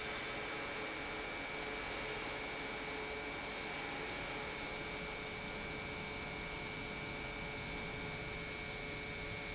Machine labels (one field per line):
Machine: pump